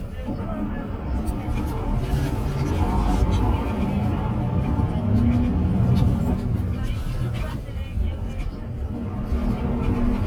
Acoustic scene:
bus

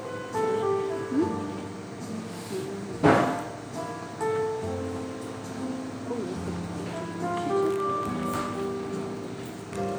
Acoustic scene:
cafe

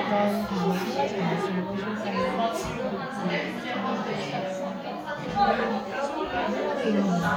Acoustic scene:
crowded indoor space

